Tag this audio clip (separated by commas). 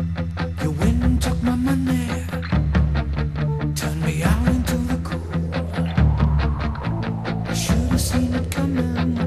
Music